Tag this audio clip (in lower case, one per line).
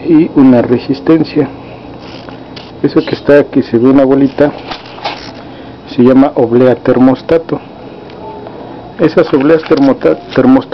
speech
inside a small room